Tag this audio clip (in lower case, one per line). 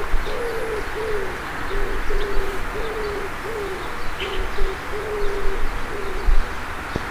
wild animals
animal
bird